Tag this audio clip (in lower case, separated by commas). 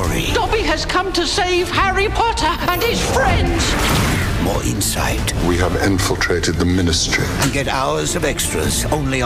music, speech